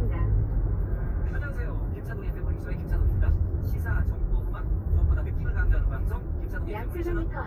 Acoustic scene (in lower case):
car